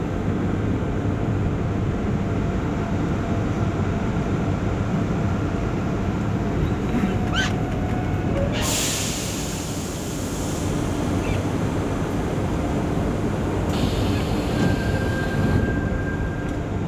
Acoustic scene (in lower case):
subway train